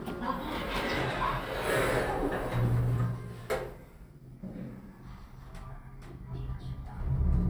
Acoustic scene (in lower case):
elevator